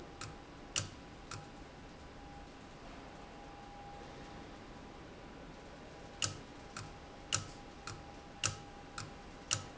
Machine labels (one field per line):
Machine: valve